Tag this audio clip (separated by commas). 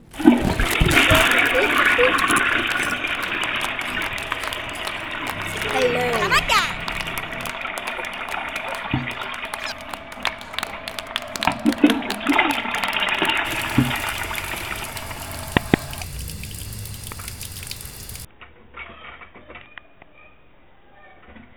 Domestic sounds, Toilet flush